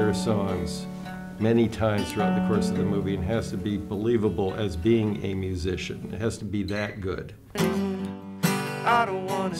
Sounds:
Speech, Music

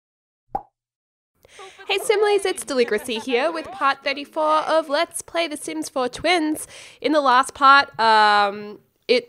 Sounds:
Speech, outside, urban or man-made

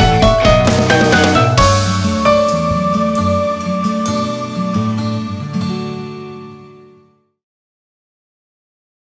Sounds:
Music

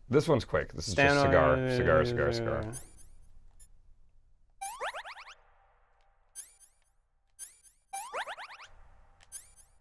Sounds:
Speech

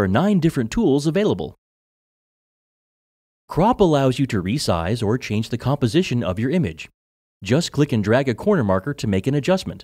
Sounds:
Speech

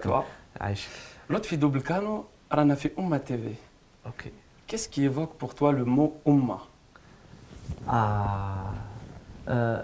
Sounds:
Speech

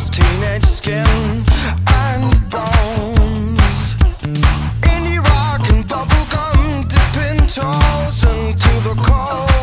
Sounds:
Music

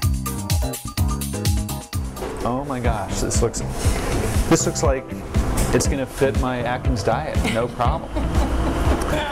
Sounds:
Speech, Music

